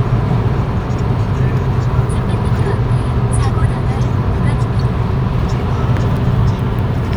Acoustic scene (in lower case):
car